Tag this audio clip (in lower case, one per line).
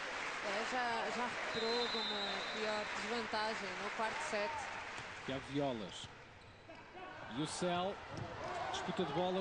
speech